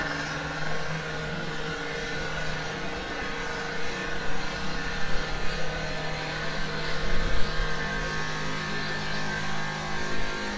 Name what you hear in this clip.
jackhammer